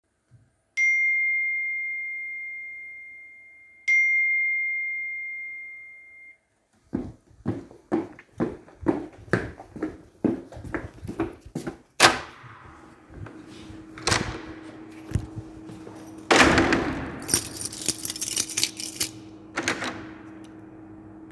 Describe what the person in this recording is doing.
I got a notification on my phone to go out and walked down the hallway opened the door get outside and closed it the lock using my keys